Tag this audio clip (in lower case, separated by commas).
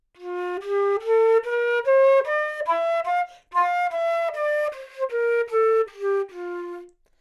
music, musical instrument, wind instrument